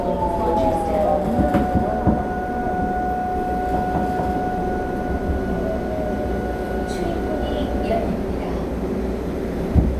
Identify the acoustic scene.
subway train